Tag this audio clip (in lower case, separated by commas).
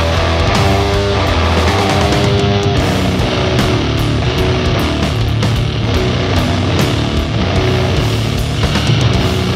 music